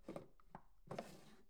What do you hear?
wooden drawer opening